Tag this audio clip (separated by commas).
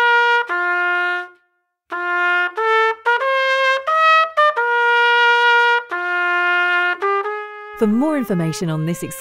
playing cornet